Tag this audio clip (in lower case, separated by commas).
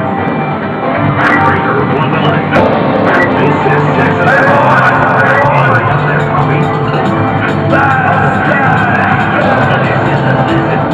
music, speech